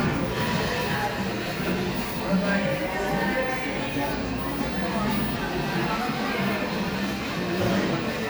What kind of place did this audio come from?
cafe